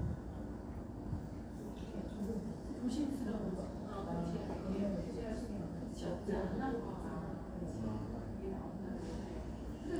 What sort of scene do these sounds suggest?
cafe